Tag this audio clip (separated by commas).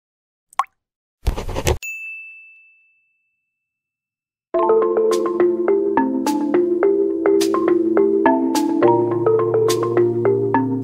inside a small room, Music